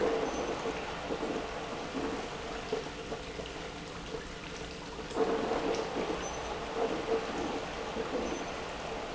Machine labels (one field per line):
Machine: pump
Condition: abnormal